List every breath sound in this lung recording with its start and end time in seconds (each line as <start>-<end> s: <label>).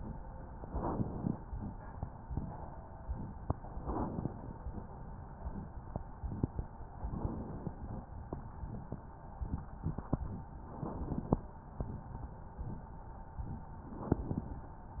0.61-1.31 s: inhalation
3.81-4.52 s: inhalation
7.08-7.78 s: inhalation
10.72-11.42 s: inhalation
13.87-14.57 s: inhalation